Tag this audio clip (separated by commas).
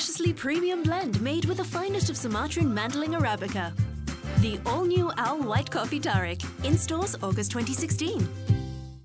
Speech, Music